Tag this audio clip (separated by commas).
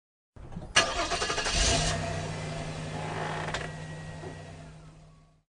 Engine, Car, Engine starting, Motor vehicle (road), Vehicle